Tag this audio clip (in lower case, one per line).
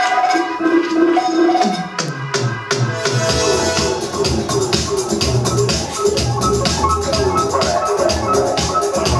musical instrument
music